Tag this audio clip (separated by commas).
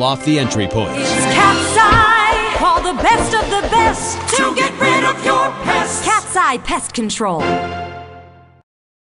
Speech, Music